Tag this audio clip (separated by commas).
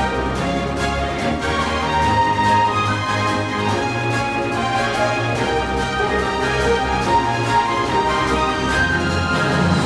Orchestra, Music